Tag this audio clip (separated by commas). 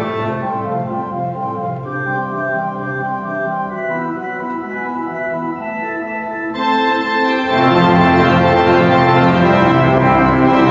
playing electronic organ